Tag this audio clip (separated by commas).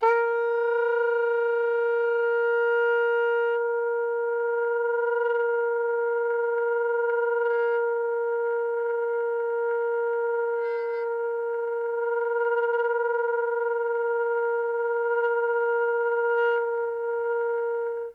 Musical instrument, Music, Wind instrument